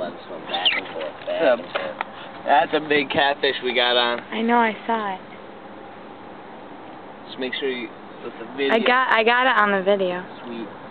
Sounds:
vehicle, outside, rural or natural, speech

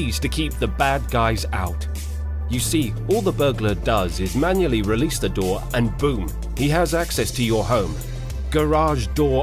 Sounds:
music, speech

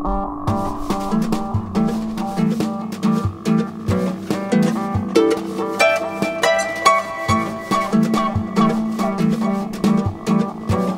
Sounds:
ukulele, music, jazz

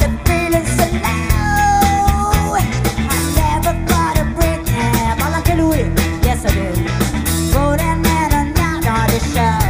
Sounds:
music, rock music

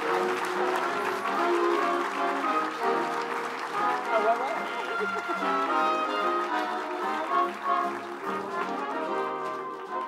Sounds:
trombone, speech, brass instrument

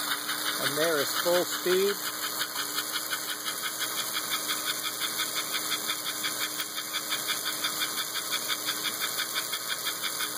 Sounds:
train, engine, inside a small room, speech

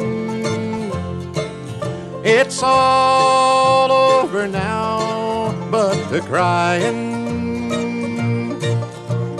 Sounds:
music

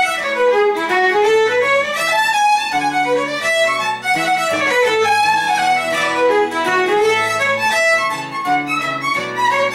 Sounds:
guitar, musical instrument, music, plucked string instrument, acoustic guitar

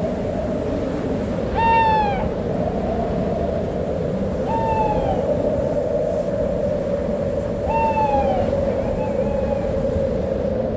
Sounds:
owl

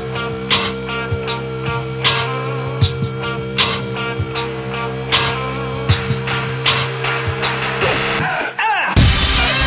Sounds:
music

